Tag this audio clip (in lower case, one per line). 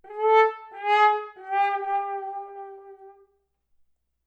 music
brass instrument
musical instrument